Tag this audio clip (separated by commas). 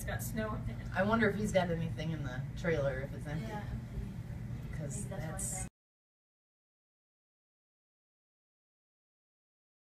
Speech